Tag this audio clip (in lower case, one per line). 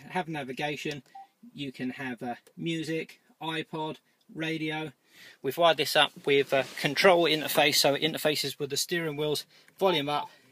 speech